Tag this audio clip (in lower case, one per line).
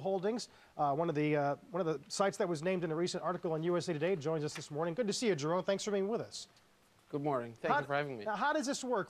speech